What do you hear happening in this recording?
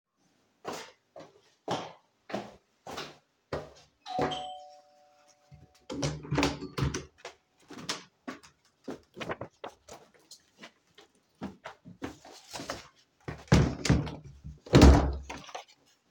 walked to the door,ring the bell,open the door,close the door